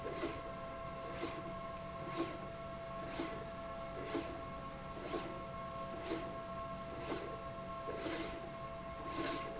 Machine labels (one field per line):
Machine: slide rail